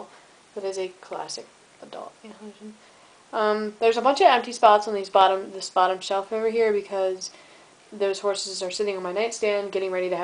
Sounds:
speech

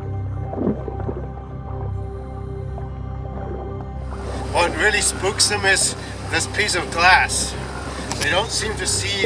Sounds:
music
speech

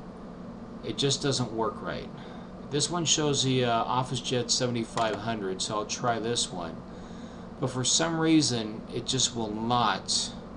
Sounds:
speech

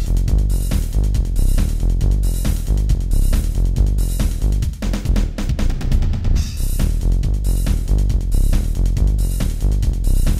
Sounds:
music

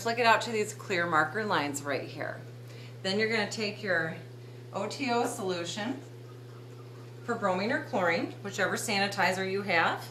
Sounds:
speech

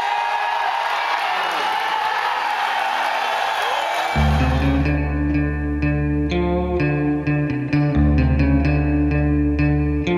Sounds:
music

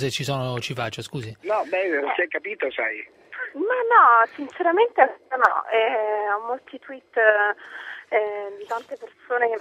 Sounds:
speech

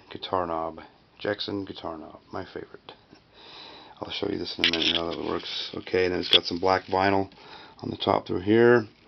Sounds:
speech

